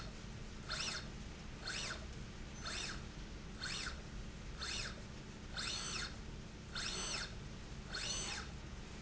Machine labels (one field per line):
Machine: slide rail